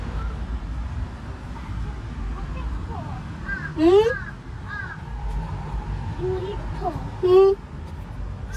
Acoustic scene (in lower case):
residential area